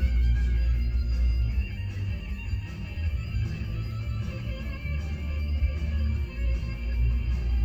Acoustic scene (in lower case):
car